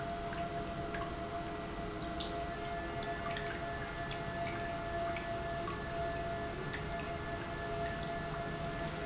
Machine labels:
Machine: pump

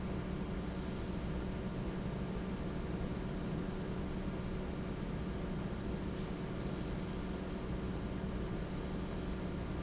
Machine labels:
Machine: fan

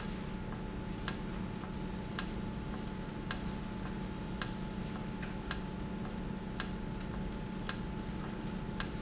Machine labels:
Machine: valve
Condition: normal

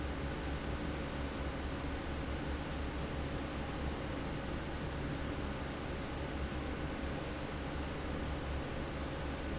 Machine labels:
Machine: fan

